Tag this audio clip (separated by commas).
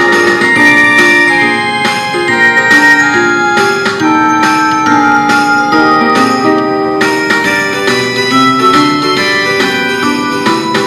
Music